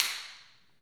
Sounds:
finger snapping
hands

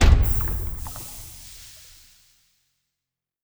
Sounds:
liquid

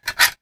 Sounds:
tools

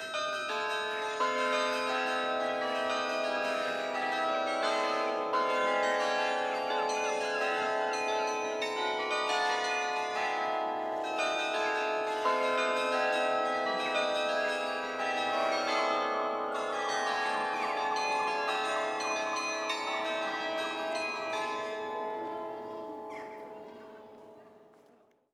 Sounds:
bell
chime

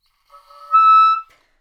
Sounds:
wind instrument
musical instrument
music

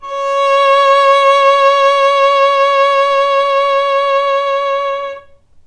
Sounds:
musical instrument
music
bowed string instrument

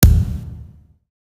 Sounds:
thud

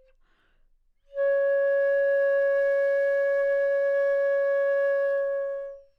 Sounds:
musical instrument
music
woodwind instrument

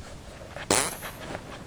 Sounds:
fart

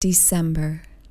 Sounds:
human voice
speech
woman speaking

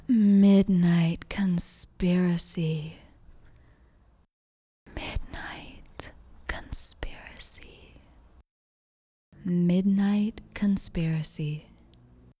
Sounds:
whispering
human voice

